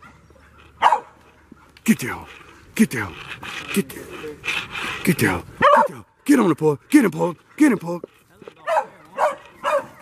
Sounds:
dog baying

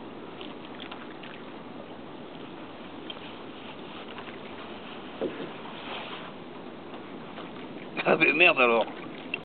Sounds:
speech

